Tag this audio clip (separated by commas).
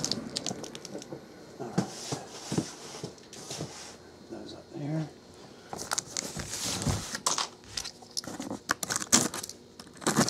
Speech